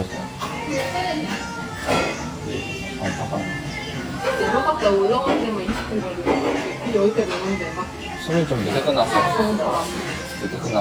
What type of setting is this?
restaurant